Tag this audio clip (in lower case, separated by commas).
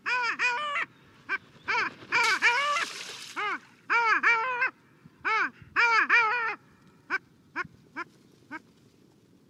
duck, duck quacking, quack